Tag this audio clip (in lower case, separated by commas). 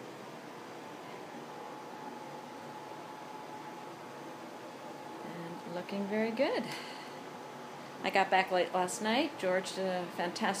speech